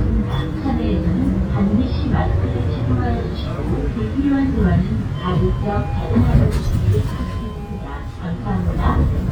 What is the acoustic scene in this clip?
bus